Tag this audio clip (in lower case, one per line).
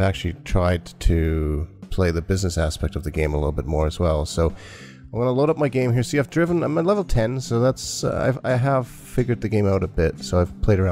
music
speech